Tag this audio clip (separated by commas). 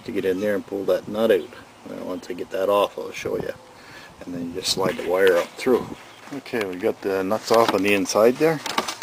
Speech